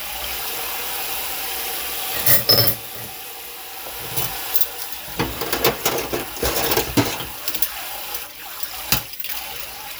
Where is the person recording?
in a kitchen